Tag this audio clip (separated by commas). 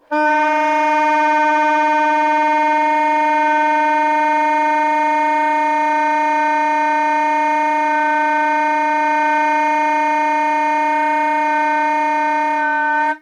Musical instrument, woodwind instrument, Music